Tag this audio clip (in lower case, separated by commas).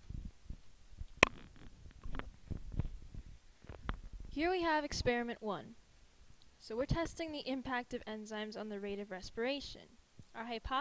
silence, speech